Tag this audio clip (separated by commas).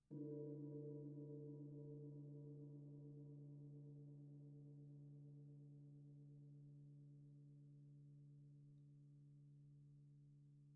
Music, Percussion, Gong, Musical instrument